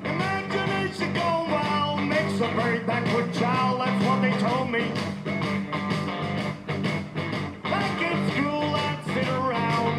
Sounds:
music

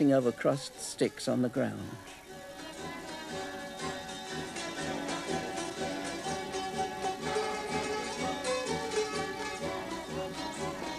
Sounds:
speech
music
folk music

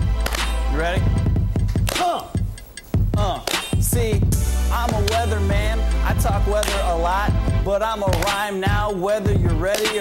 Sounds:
rapping

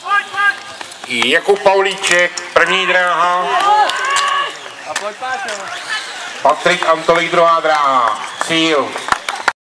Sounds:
run
speech
outside, urban or man-made

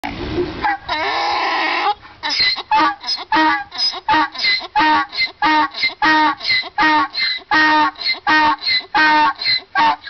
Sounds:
donkey

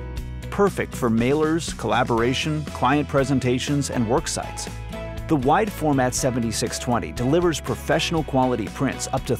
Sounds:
speech
music

